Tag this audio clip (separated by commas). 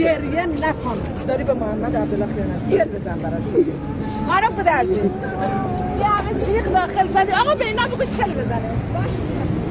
Speech